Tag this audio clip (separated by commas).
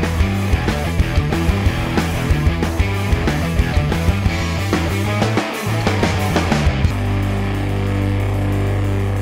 Music